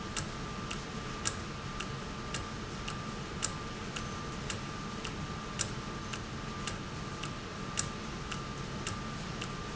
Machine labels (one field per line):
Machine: valve